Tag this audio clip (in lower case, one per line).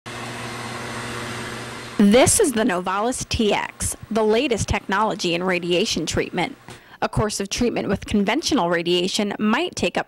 speech
inside a small room